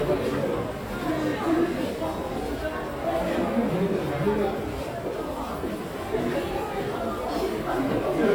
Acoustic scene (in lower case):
subway station